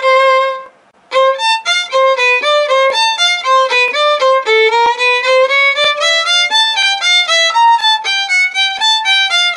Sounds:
musical instrument
music
violin

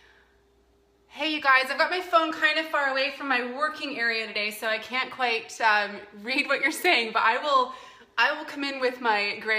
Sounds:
speech

